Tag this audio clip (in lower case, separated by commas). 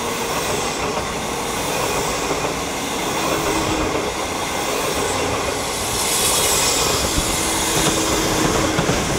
rail transport, railroad car, train